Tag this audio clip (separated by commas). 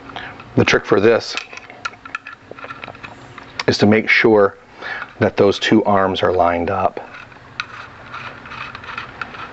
Speech